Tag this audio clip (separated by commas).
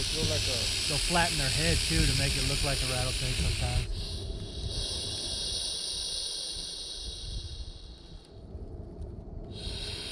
snake hissing